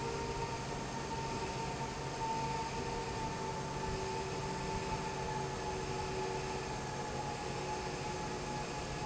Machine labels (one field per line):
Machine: fan